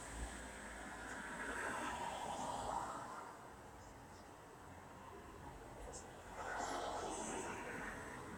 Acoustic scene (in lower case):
street